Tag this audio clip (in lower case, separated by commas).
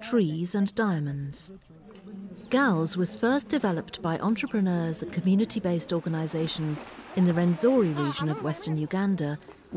speech